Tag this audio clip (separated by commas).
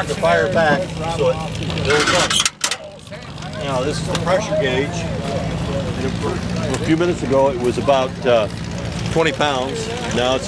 Truck, Vehicle, Speech